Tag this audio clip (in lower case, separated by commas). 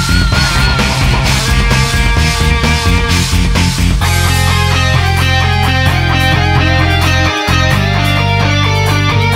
music